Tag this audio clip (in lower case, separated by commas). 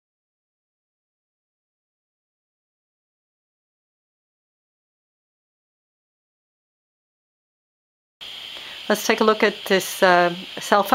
speech